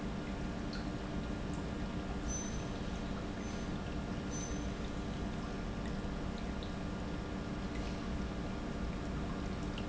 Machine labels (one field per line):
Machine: pump